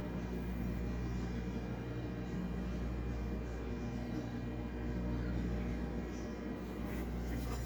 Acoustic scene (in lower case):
kitchen